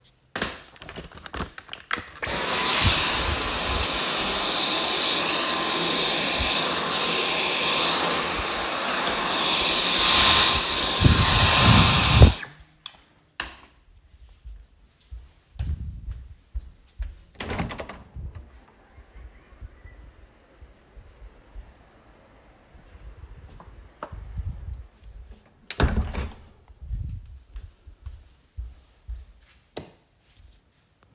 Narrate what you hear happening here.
I entered the living room, switched on the light and turned on the vacuum cleaner. After vacuuming, I walked to the window, opened and closed it. Then I left the room switching off the light.